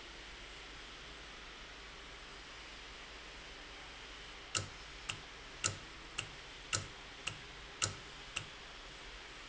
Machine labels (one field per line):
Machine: valve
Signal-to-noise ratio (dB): 6 dB